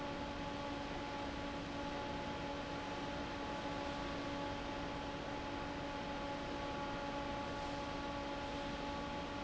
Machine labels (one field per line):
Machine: fan